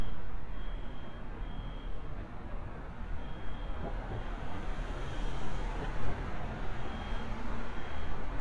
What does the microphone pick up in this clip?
unidentified alert signal